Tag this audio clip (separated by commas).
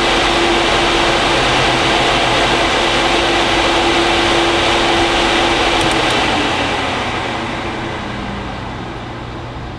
inside a small room, Mechanical fan